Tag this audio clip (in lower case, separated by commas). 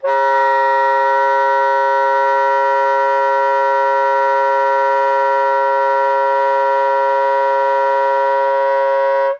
music, musical instrument, wind instrument